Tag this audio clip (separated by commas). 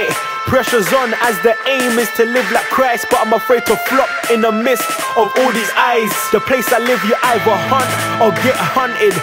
Music, Rhythm and blues, Folk music